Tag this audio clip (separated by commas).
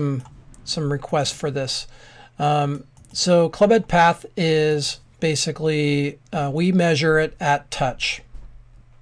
Speech